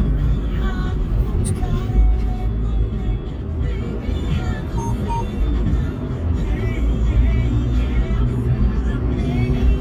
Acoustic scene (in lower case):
car